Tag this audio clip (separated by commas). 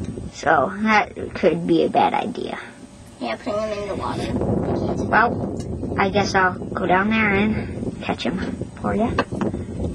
Speech